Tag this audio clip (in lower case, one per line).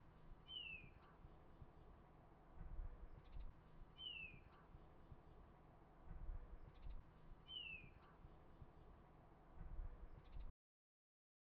bird
wild animals
bird call
animal